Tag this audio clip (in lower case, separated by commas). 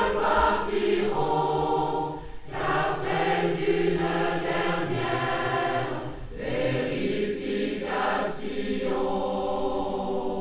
mantra, music